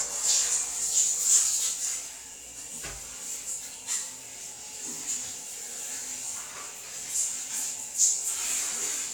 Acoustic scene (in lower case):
restroom